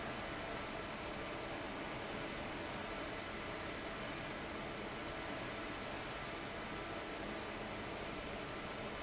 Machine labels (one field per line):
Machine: fan